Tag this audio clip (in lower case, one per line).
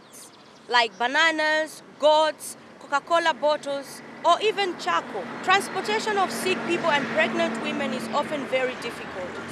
vehicle
speech